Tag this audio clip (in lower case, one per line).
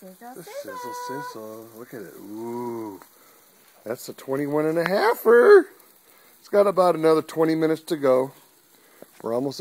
speech